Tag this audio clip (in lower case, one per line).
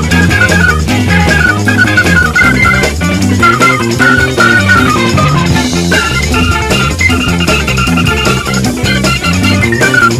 music